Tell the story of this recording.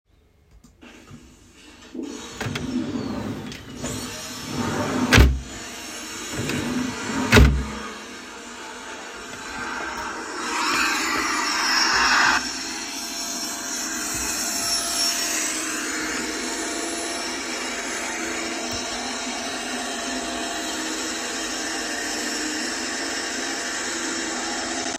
I turned on the vacuum cleaner and started cleaning the living room floor. Mid-way through, I opened a storage drawer to put something away and then closed it. I carried on vacuuming until I was done.